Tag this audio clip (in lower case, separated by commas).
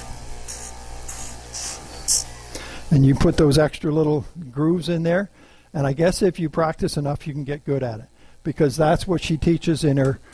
speech, inside a small room, tools